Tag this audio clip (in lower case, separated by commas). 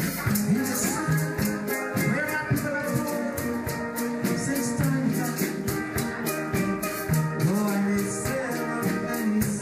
steelpan, drum, music, musical instrument, maraca